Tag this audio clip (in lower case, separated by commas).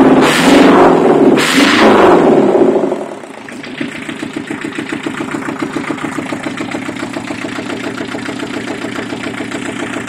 engine, vroom